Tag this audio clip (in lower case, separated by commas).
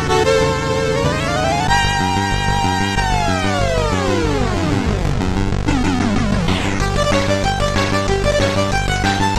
music, video game music